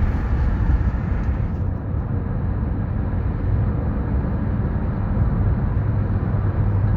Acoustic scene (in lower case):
car